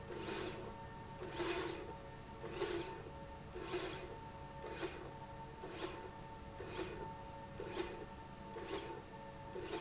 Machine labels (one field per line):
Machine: slide rail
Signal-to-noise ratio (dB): 6 dB